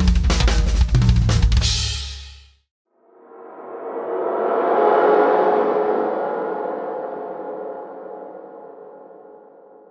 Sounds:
drum kit
bass drum
percussion
drum
cymbal
hi-hat
musical instrument
music

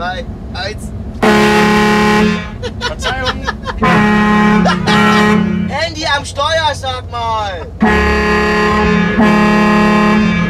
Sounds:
vehicle horn

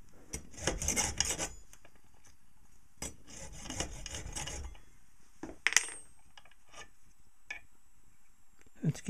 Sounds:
rub
filing (rasp)

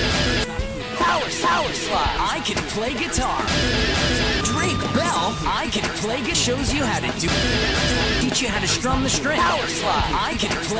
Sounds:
music
speech

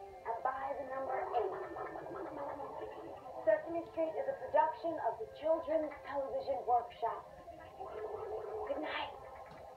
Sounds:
background music
music
speech

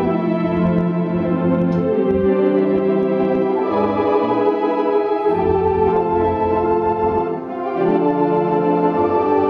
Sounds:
electronic organ
keyboard (musical)
organ

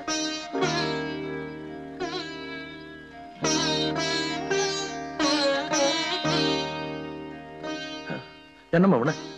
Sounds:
sitar

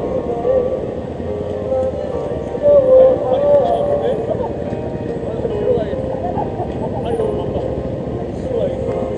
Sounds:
music
speech
vehicle
motorcycle

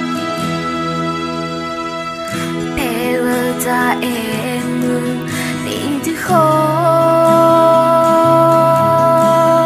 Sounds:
music

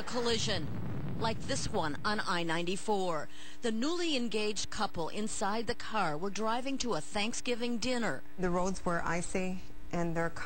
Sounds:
speech

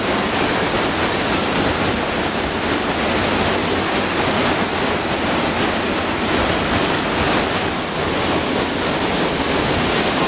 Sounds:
waterfall

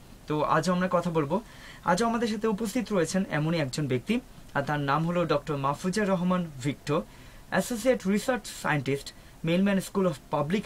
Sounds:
speech

